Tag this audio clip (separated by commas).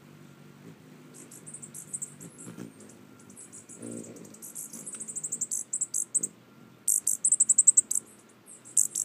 Bird, outside, rural or natural